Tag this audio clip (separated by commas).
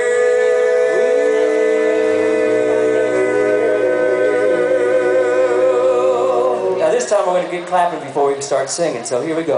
Music, Speech